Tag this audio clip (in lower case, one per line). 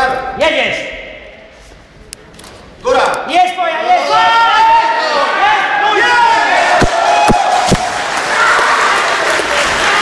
speech